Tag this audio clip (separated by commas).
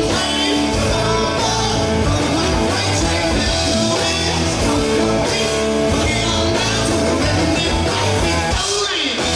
Rock and roll, Music, Singing, Roll